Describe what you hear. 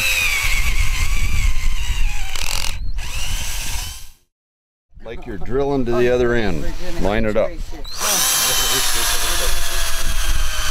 A drill drilling and male speaking